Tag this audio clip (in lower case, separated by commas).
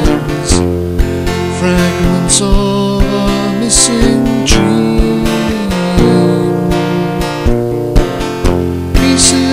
music